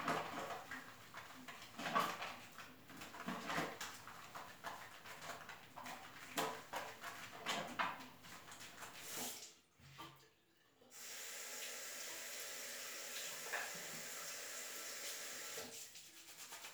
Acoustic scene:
restroom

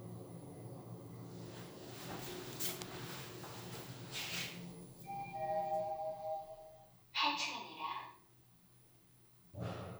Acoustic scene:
elevator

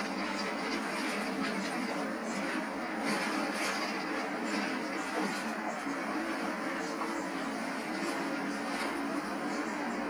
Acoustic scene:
bus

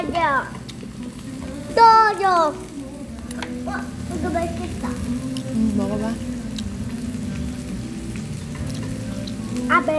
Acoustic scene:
restaurant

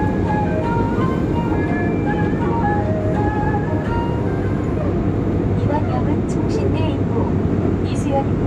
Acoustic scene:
subway train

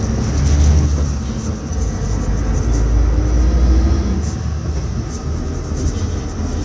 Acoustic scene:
bus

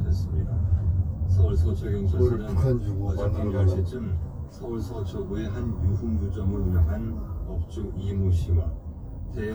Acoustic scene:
car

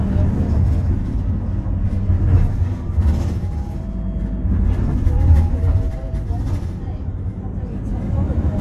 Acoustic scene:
bus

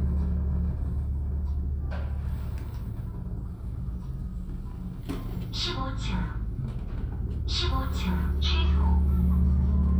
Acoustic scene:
elevator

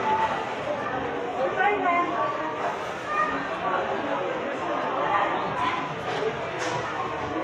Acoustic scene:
subway station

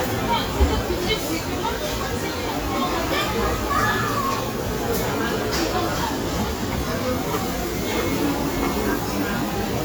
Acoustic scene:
restaurant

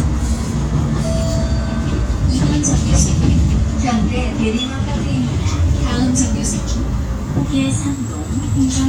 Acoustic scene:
bus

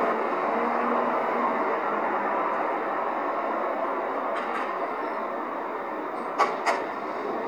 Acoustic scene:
street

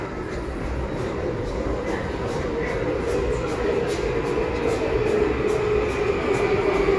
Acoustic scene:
subway station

